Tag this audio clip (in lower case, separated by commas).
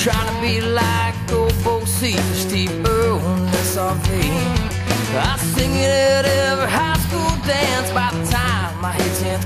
bluegrass, music, rhythm and blues